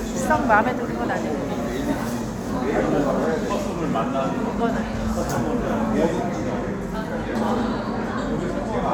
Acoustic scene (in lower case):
crowded indoor space